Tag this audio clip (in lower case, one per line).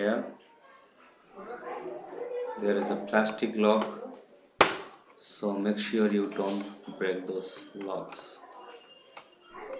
speech